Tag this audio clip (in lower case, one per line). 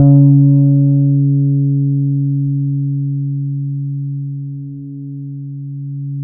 music
plucked string instrument
musical instrument
guitar
bass guitar